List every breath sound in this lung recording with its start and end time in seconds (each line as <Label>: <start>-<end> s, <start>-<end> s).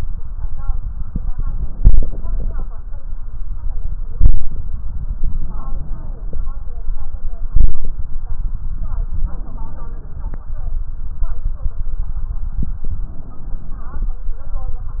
Inhalation: 1.79-2.70 s, 5.31-6.41 s, 9.28-10.38 s, 12.93-14.17 s